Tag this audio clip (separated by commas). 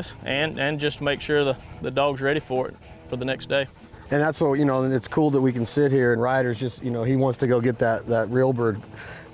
Speech